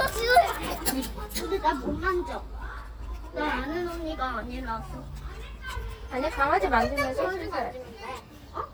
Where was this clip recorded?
in a park